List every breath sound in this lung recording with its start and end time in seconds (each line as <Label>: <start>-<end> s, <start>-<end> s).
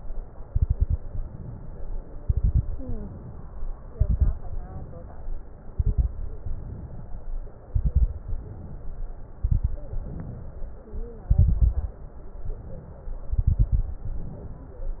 Inhalation: 1.01-1.93 s, 2.81-3.67 s, 4.46-5.33 s, 6.40-7.26 s, 8.25-9.11 s, 10.05-10.91 s, 12.20-13.29 s, 14.12-15.00 s
Exhalation: 0.47-0.97 s, 2.22-2.77 s, 3.91-4.46 s, 5.74-6.19 s, 7.70-8.24 s, 9.46-10.01 s, 11.31-11.97 s, 13.30-14.06 s
Crackles: 0.47-0.97 s, 2.22-2.77 s, 3.91-4.46 s, 5.74-6.19 s, 7.70-8.24 s, 9.46-10.01 s, 11.31-11.97 s, 13.30-14.06 s